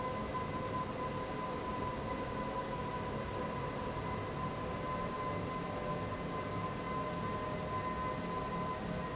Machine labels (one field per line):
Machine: fan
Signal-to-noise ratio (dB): -6 dB